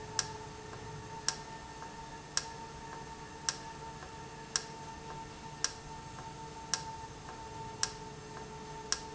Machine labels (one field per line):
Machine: valve